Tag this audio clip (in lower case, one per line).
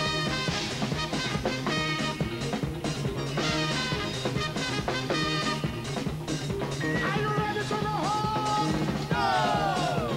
music